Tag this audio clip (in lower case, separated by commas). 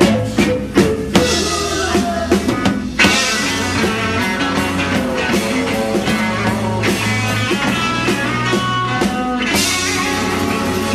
singing, music